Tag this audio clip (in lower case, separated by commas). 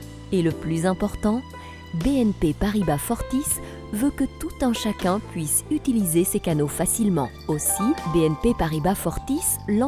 music, speech